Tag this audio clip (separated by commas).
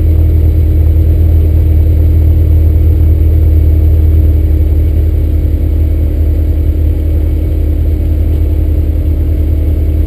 Car